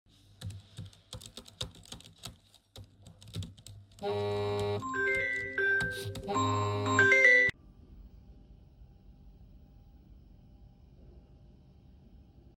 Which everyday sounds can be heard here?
keyboard typing, phone ringing